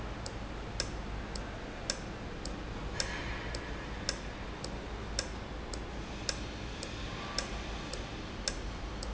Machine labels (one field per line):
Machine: valve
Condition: normal